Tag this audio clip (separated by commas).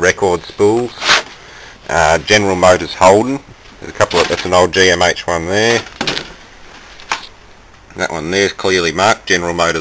Speech